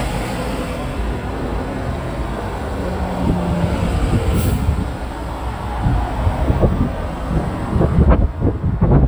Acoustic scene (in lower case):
street